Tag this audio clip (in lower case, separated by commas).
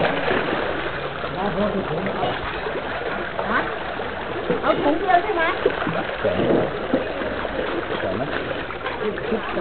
vehicle, speech